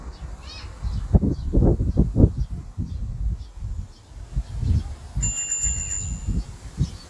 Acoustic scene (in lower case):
park